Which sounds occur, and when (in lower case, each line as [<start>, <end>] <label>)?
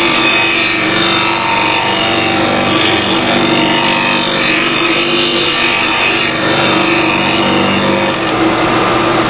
[0.00, 9.25] mechanisms